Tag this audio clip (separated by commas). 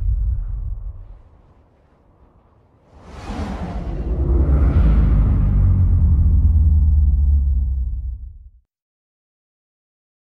outside, rural or natural